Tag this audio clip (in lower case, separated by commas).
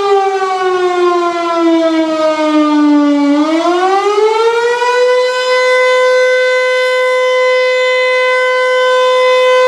civil defense siren